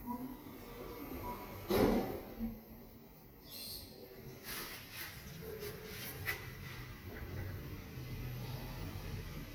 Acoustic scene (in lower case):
elevator